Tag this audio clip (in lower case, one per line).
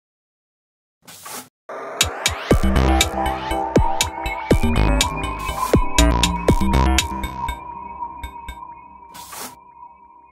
music